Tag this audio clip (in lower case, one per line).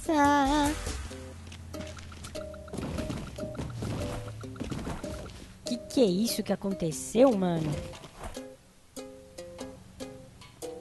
music
speech